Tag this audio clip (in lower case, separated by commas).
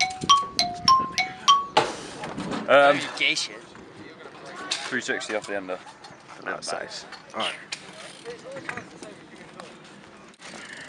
speech